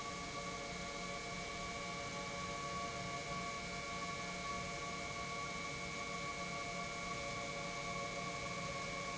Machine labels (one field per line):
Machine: pump